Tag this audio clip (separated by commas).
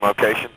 Human voice, Male speech, Speech